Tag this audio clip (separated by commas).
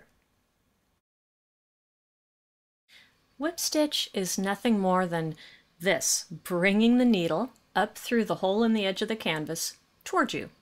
Speech